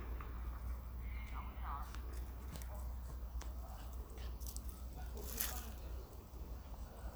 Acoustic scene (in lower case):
park